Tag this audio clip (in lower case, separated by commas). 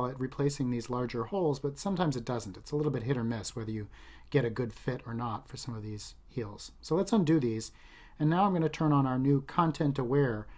speech